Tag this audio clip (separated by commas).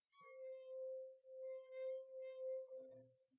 Glass